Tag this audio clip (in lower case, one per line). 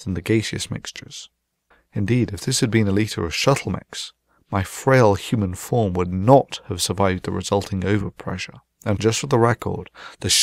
monologue